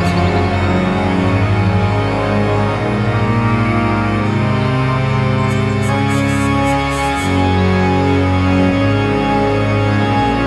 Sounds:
music
sampler

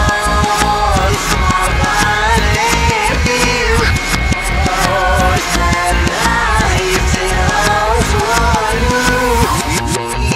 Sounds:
music
soundtrack music

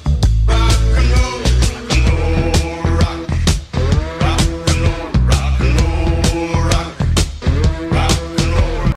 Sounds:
music

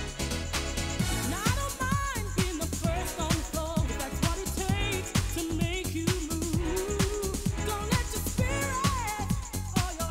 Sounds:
exciting music
music

